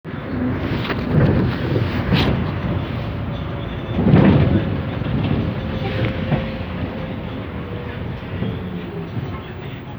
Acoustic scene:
bus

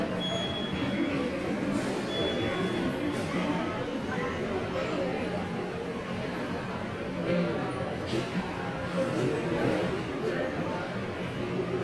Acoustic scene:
subway station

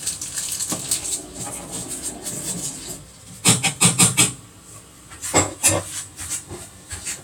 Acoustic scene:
kitchen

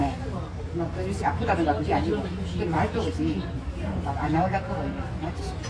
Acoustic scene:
restaurant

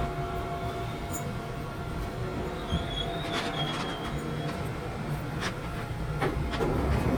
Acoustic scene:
subway train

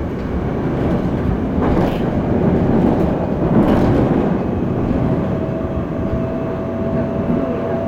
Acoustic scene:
subway train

